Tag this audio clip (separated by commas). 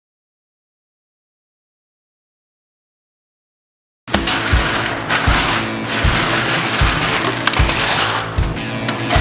Music, Silence, inside a small room